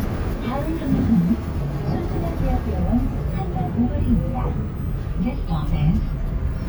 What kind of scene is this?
bus